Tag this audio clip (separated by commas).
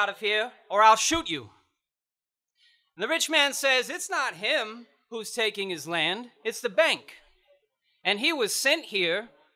Speech, monologue, man speaking